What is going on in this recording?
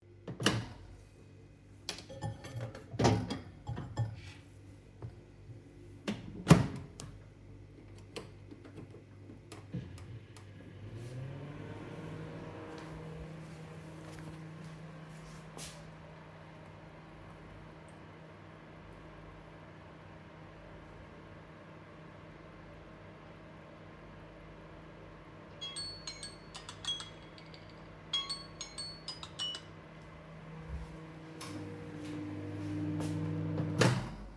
I opened the microwave, put something on the dish, closed it and turned it on. Then I walked to my phone and set a timer. Finally the timer goes off, I walk back to the microwave and open it.